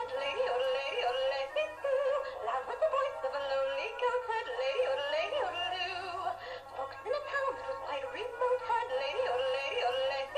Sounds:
Female singing

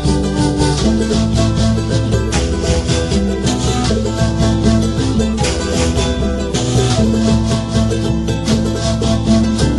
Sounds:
Musical instrument, Music

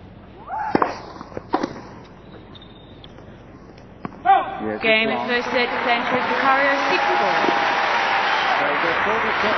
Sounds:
inside a public space, Speech

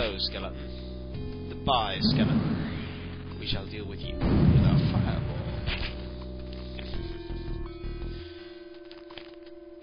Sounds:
Music, Speech

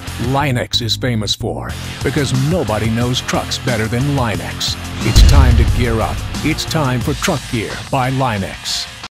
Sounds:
Speech, Music

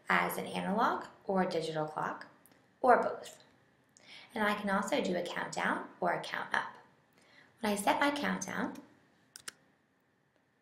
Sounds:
Speech

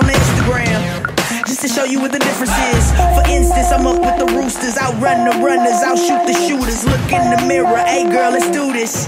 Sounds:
Music

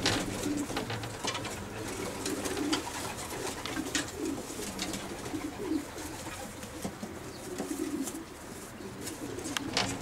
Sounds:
inside a small room, Bird, dove

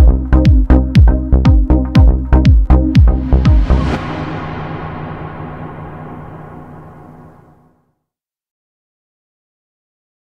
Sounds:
Music

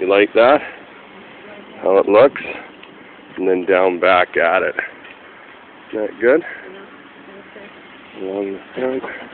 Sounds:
Speech

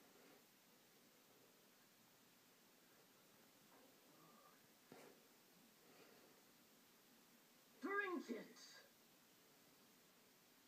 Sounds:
Speech

